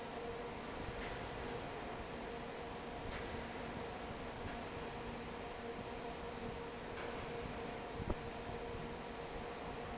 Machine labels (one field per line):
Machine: fan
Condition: normal